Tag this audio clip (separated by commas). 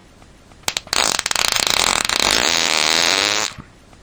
Fart